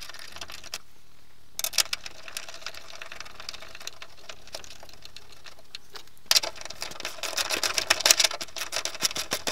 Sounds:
sliding door

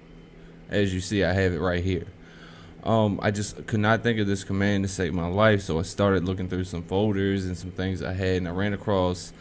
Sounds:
speech

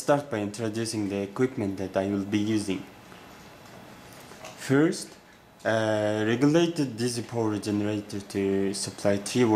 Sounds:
speech

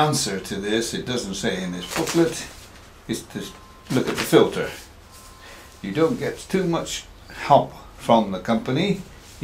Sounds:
speech

